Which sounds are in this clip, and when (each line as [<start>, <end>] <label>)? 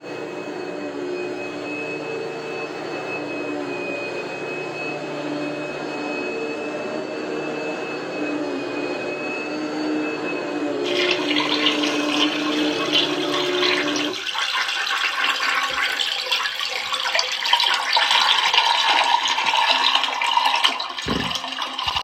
[0.01, 14.28] vacuum cleaner
[10.85, 22.04] toilet flushing